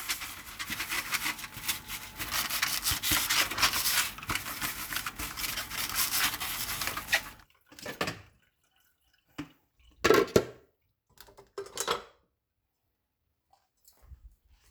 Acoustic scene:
kitchen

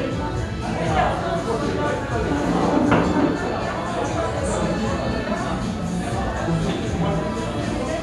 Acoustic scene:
crowded indoor space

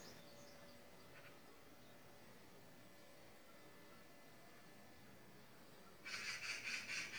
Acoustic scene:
park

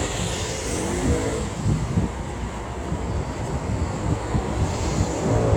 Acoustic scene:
street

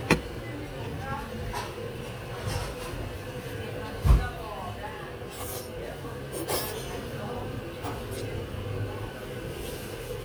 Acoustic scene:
restaurant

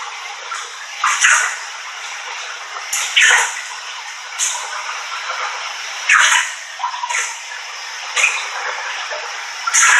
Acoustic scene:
restroom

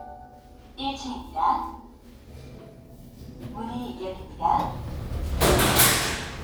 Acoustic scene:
elevator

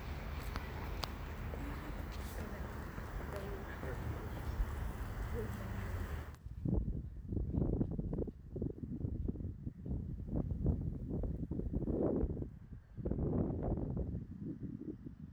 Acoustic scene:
residential area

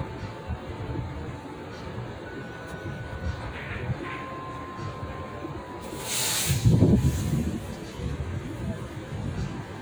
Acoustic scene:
street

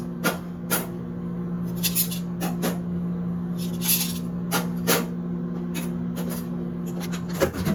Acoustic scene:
kitchen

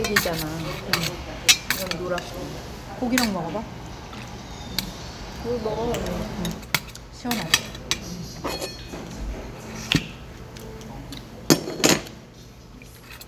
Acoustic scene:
restaurant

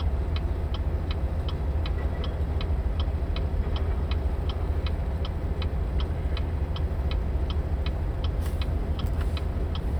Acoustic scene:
car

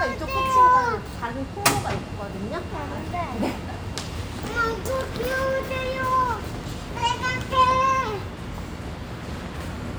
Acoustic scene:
subway station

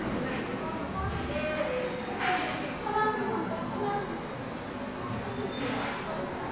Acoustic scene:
subway station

